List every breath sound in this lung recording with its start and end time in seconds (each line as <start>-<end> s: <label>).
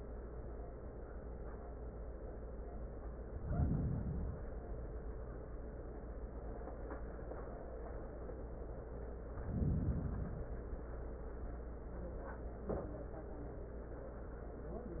3.29-4.53 s: inhalation
9.34-10.58 s: inhalation